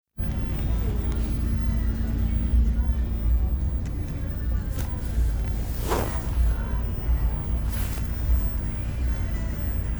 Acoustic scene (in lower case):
bus